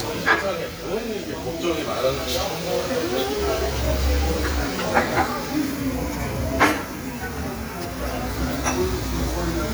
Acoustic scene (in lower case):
restaurant